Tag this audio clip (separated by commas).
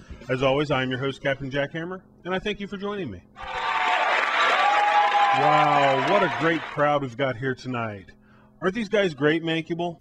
Speech